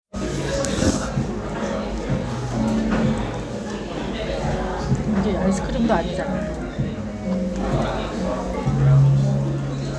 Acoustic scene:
crowded indoor space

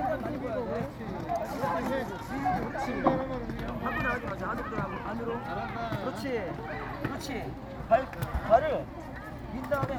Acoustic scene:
park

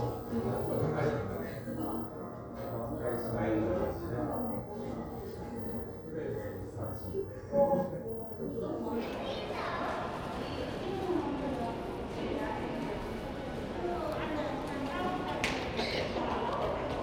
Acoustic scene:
crowded indoor space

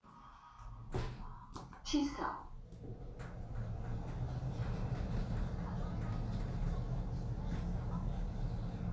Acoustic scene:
elevator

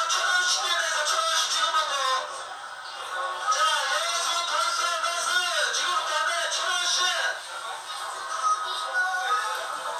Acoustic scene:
crowded indoor space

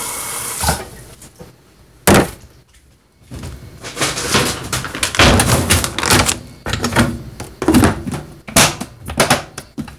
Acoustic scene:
kitchen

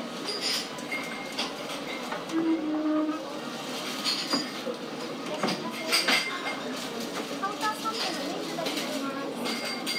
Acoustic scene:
cafe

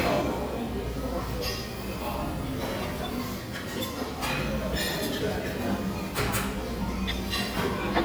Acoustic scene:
crowded indoor space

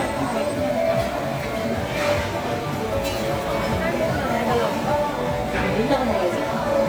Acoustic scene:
restaurant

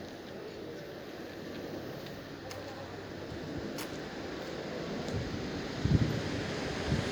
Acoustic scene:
residential area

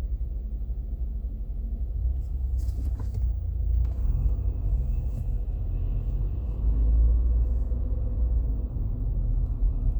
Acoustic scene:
car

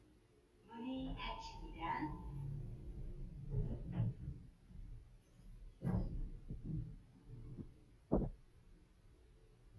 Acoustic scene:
elevator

